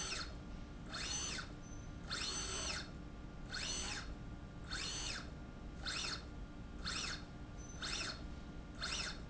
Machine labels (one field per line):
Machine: slide rail